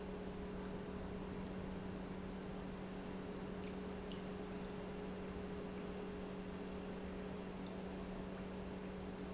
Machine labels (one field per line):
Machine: pump